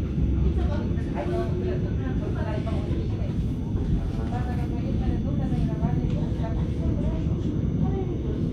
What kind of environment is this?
subway train